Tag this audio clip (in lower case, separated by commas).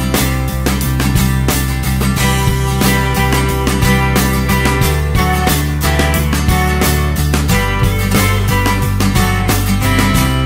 music